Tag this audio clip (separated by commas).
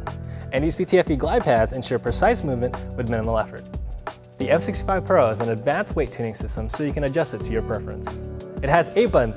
Music, Speech